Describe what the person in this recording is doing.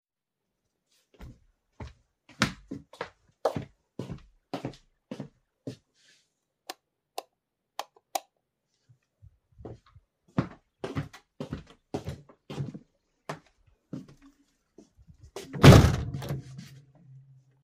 I walked across the room, flipped the light switch and closed the window.